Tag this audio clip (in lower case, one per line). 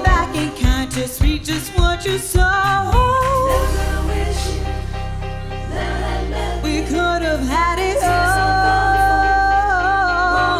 music
singing